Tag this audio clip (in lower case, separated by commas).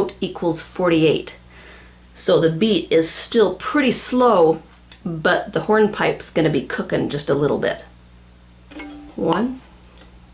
speech